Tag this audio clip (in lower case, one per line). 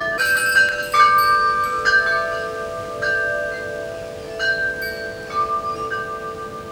chime
wind chime
bell